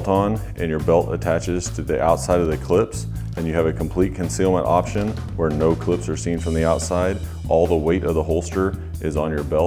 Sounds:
speech
music

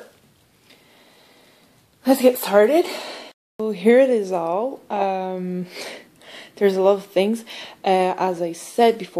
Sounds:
speech

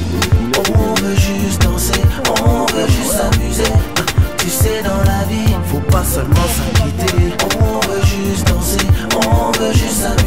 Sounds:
music

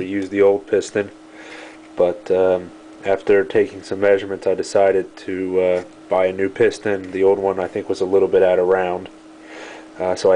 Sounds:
speech

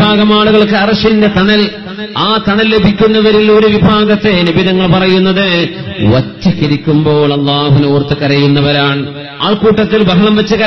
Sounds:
speech
male speech
narration

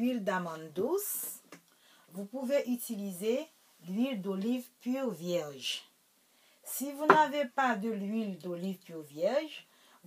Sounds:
speech

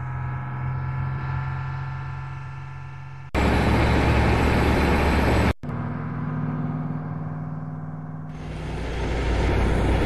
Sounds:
vehicle

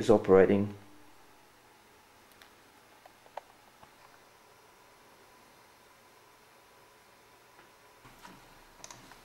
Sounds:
speech

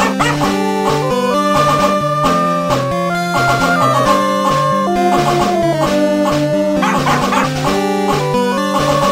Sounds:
music

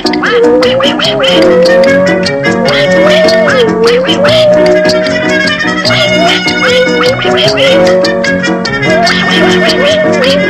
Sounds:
music

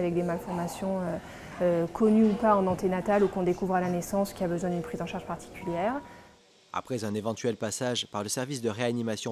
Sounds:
speech

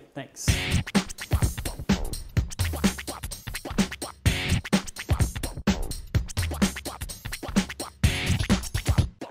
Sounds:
scratching (performance technique)

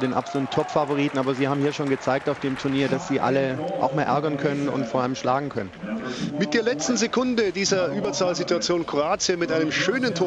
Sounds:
speech

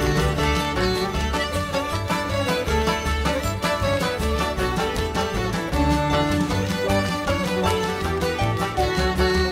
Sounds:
jingle bell

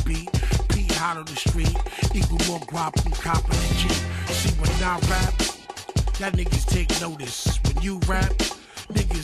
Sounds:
rapping
music

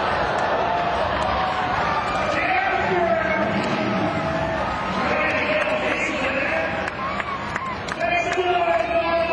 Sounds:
speech

